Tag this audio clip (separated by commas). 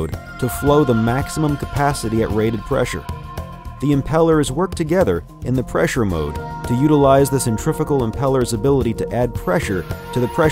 Speech, Music